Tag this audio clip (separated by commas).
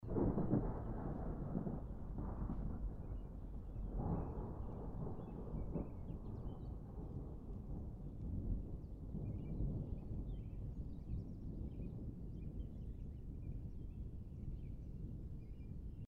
Thunder, Thunderstorm